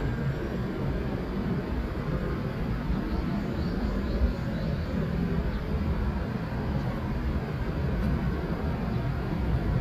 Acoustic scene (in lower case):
street